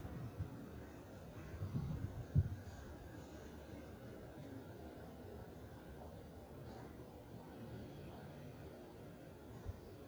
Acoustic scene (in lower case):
residential area